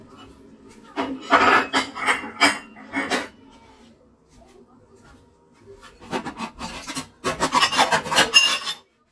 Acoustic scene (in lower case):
kitchen